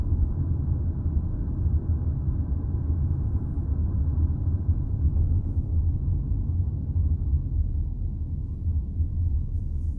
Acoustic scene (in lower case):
car